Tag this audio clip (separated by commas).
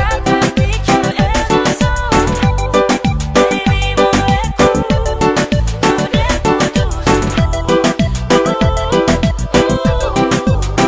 Music